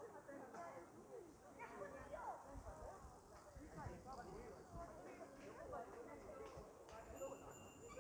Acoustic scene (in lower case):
park